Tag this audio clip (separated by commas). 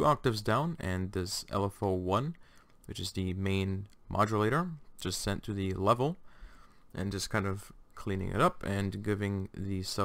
Speech